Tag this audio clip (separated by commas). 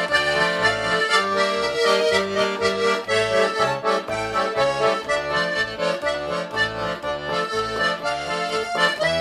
playing accordion